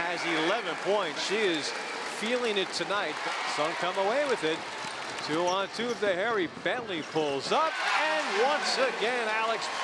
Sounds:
Basketball bounce

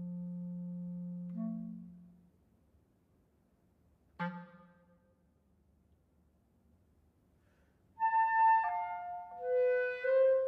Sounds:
playing clarinet

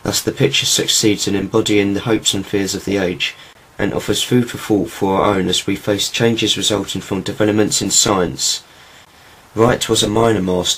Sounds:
Speech

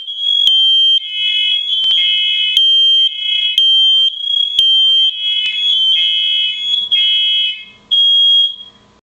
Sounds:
Smoke detector, Fire alarm, bleep

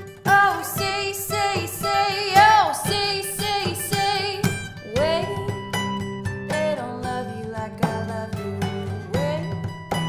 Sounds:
Music, inside a large room or hall

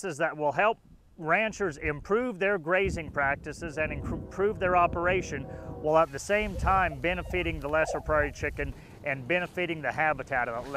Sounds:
Speech

